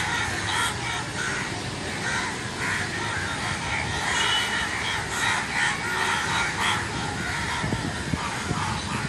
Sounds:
crow cawing

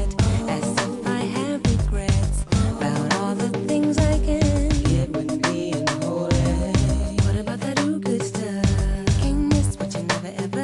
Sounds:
Music

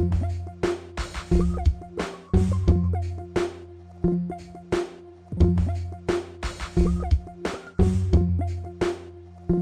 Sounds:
Music

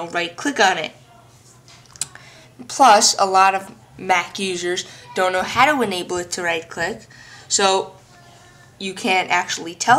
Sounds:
Speech

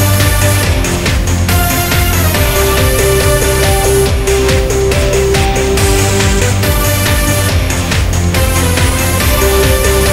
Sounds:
Music

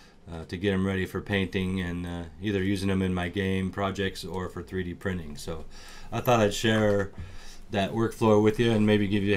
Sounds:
Speech

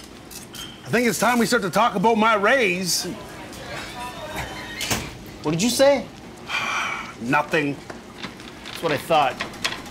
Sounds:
Speech, inside a small room

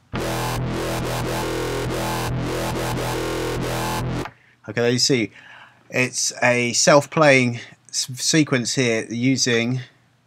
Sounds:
Electronic music, Dubstep, Music, Speech

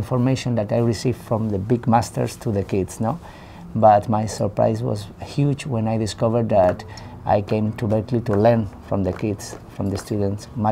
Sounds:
Speech, Music

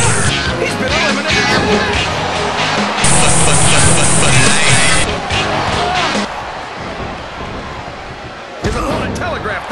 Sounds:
Music, Speech

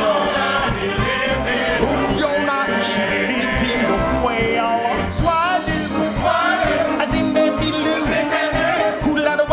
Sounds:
Music

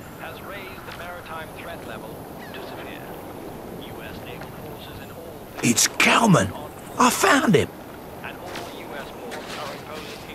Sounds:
Speech

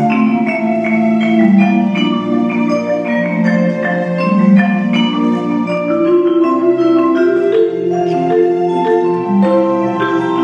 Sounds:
Percussion, Marimba, Bell, Vibraphone, Orchestra, Musical instrument

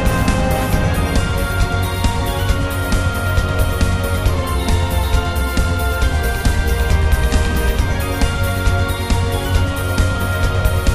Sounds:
Music

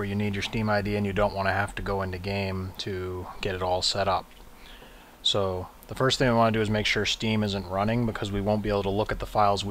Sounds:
Speech

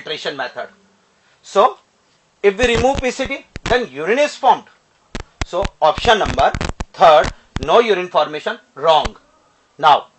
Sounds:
Speech

